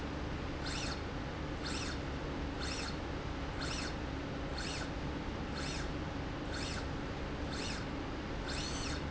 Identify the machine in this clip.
slide rail